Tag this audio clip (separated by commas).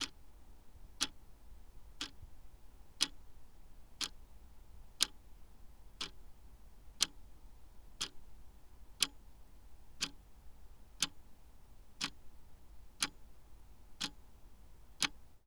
Tick-tock, Mechanisms, Clock